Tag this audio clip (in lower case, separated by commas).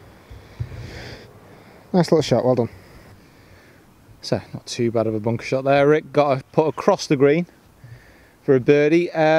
speech, outside, urban or man-made